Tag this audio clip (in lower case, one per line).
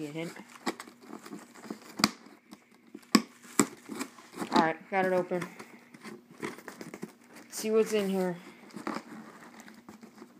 speech